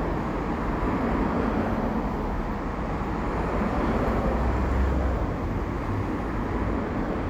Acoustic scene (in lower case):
street